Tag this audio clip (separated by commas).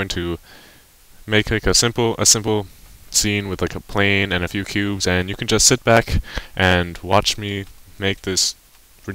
Speech